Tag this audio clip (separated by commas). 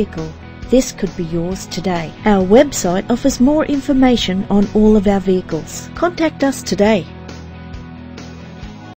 Music, Speech